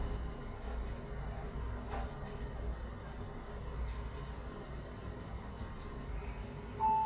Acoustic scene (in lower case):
elevator